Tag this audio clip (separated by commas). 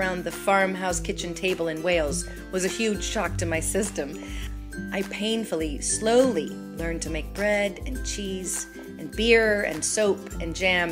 Music, Speech